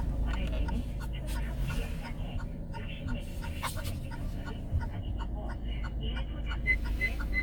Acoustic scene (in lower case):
car